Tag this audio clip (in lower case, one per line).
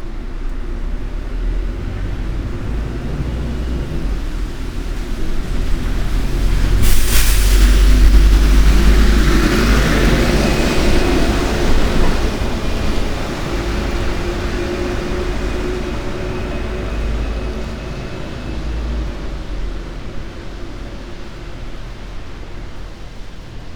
bus
motor vehicle (road)
vehicle